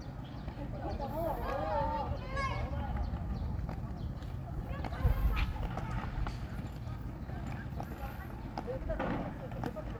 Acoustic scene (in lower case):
park